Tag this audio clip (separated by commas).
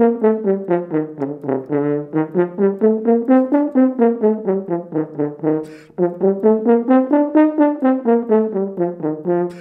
playing french horn